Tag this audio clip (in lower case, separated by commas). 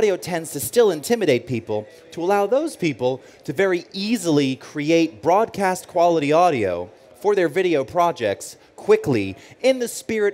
speech